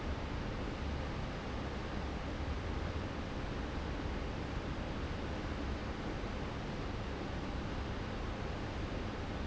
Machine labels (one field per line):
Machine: fan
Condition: normal